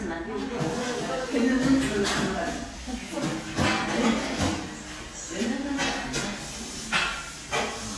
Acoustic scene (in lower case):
crowded indoor space